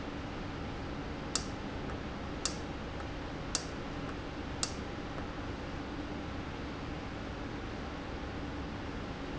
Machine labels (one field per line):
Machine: valve